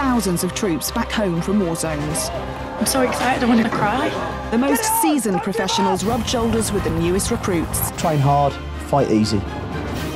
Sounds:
Speech, Music

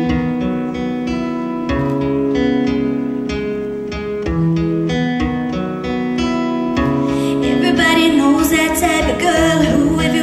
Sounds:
Female singing, Music

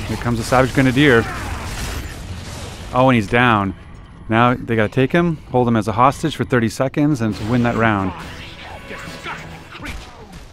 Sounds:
Music, Speech

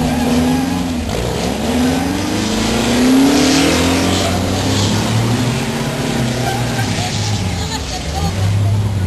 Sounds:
Vehicle, Speech

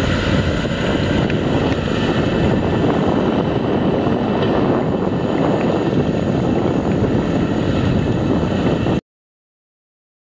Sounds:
outside, rural or natural, Vehicle

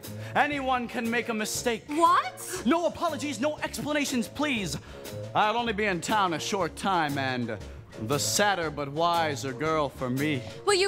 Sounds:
Background music, Music, Speech

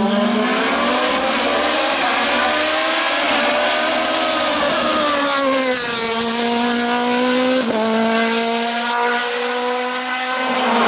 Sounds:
Car, Motor vehicle (road), Race car, Vehicle

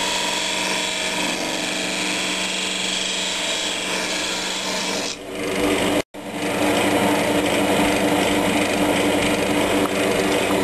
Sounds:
Tools, Power tool

